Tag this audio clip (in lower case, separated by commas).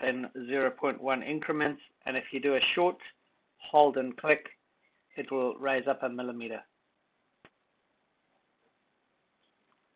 speech